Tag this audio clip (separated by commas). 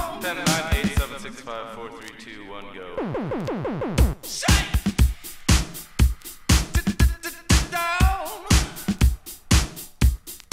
Music